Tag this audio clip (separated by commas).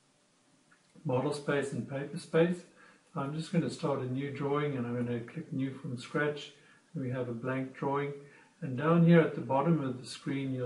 Speech